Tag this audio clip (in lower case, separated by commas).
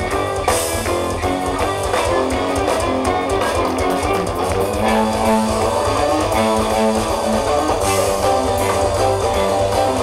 music, progressive rock